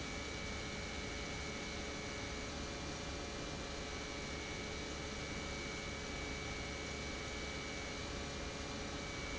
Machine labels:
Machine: pump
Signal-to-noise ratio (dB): 0 dB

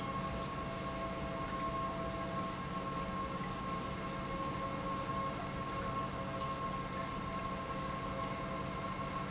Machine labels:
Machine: pump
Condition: normal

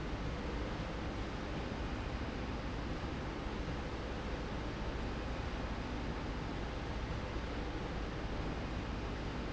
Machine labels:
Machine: slide rail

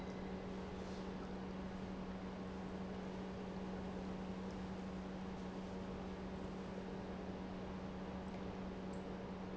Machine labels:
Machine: pump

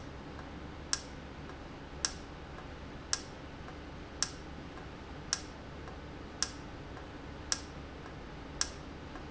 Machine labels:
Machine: valve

